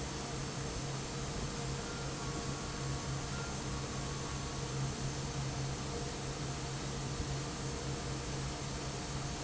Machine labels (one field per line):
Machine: fan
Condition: normal